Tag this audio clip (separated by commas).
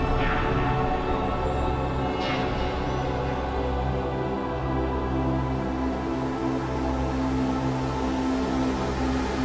Music